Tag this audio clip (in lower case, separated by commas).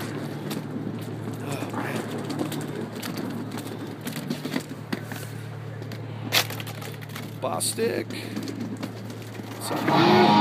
speech